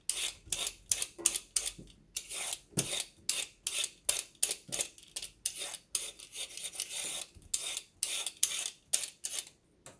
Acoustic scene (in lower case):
kitchen